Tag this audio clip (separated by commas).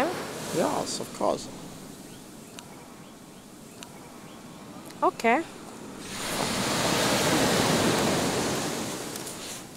Speech